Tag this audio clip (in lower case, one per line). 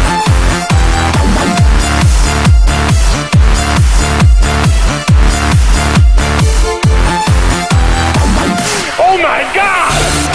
dubstep
music